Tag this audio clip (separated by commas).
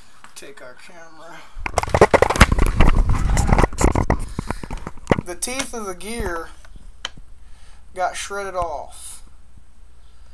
Speech